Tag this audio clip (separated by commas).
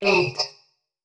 Human voice